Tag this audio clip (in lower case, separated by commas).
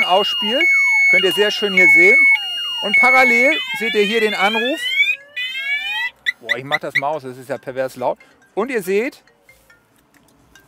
speech